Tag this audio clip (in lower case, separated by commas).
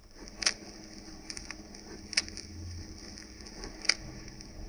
crackle